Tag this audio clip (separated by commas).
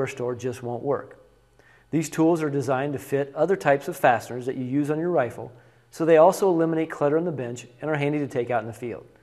Speech